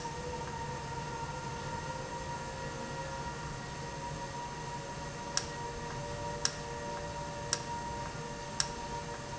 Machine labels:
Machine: valve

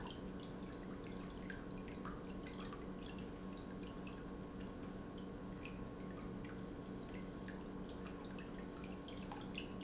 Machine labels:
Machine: pump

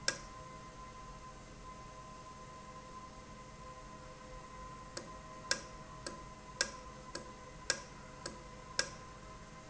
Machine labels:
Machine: valve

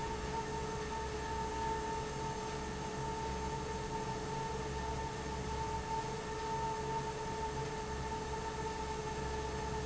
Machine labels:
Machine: fan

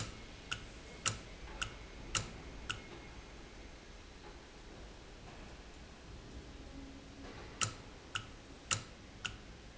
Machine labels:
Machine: valve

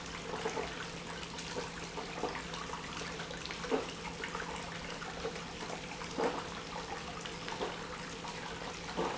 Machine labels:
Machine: pump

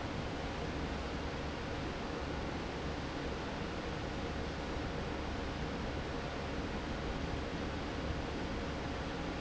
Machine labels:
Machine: fan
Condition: normal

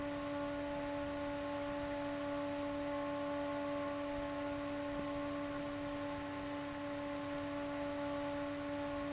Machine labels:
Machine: fan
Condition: abnormal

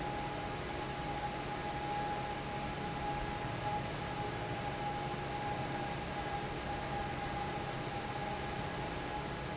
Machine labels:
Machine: fan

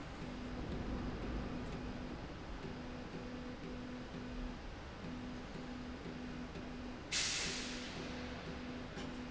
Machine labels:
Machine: slide rail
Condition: normal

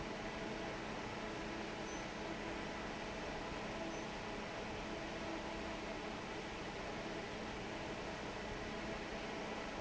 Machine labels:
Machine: fan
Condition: normal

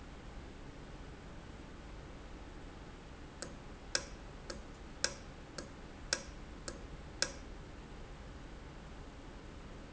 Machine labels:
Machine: valve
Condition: normal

